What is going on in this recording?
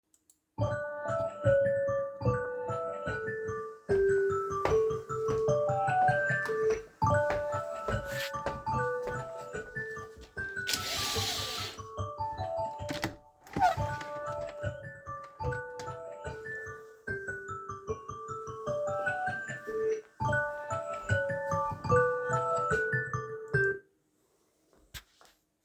The phone alarm woke me up, while my phone ringed I walked over to my window opened the insect screen and then opened the window